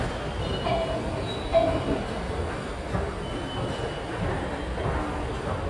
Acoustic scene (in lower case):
subway station